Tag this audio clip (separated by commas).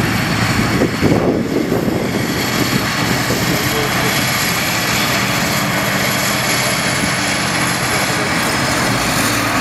Vehicle